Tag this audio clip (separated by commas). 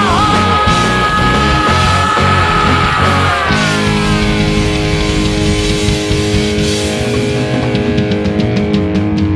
Progressive rock, Music